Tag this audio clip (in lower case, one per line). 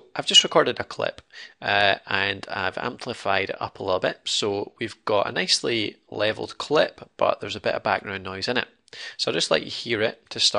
speech